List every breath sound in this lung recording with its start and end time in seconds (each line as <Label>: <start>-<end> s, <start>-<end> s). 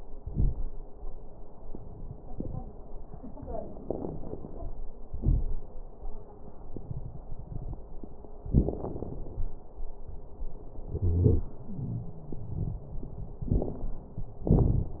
Wheeze: 10.97-11.52 s, 11.69-12.45 s